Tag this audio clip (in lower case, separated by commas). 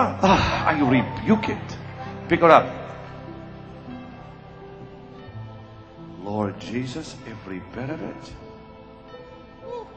music, speech